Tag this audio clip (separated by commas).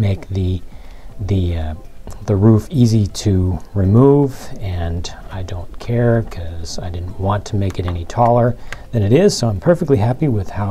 Speech, Music